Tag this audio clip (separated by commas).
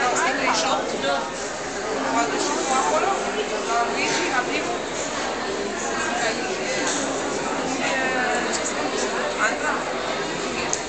Speech